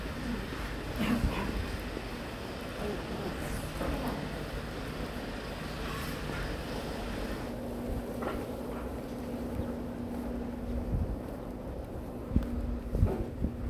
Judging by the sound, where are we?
in a residential area